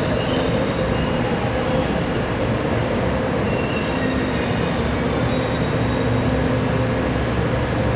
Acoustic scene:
subway station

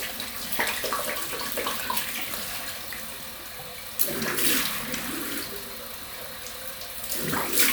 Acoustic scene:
restroom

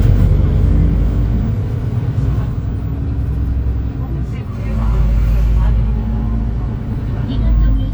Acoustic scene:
bus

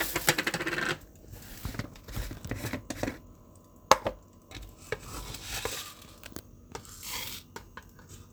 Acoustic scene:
kitchen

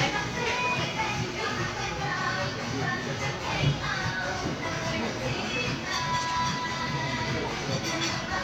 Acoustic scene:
crowded indoor space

